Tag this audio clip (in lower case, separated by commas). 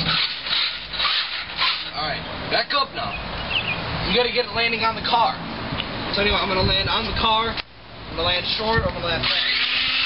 speech